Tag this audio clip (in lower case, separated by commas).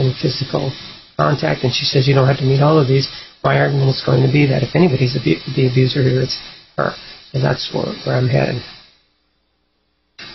speech